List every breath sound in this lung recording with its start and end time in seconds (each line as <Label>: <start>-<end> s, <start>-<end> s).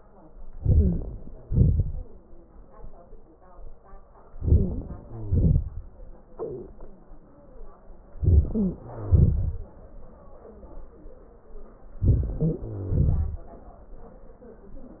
Inhalation: 0.52-1.48 s, 4.27-5.08 s, 8.11-8.77 s, 11.99-12.61 s
Exhalation: 1.44-2.38 s, 5.07-6.31 s, 8.79-10.11 s, 12.60-13.88 s
Wheeze: 0.72-1.01 s, 4.46-4.70 s, 8.52-8.77 s, 12.38-12.62 s
Crackles: 1.42-2.38 s, 5.07-5.70 s, 8.79-9.60 s, 12.60-13.42 s